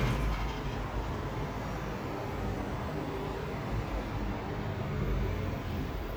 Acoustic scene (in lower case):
street